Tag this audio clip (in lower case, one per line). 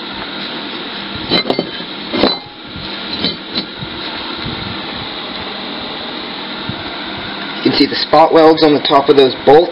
speech